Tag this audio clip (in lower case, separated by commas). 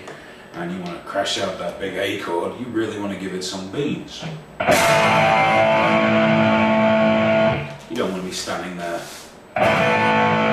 speech, musical instrument, music, plucked string instrument, guitar